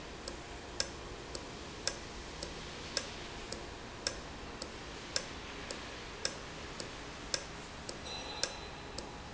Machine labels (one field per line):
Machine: valve